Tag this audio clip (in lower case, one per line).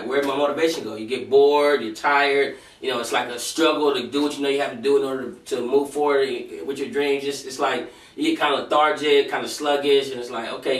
speech